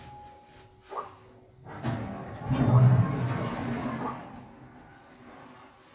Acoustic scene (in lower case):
elevator